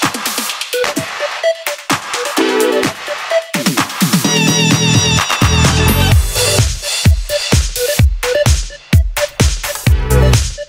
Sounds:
music

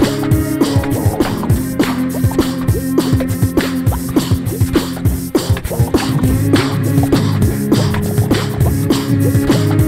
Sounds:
beatboxing

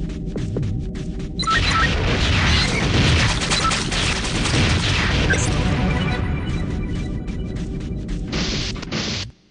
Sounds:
run

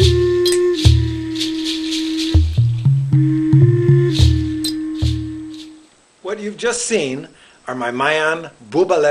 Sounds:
music
musical instrument
speech

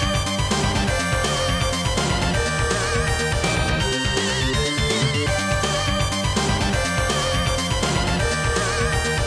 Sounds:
video game music
soundtrack music
music

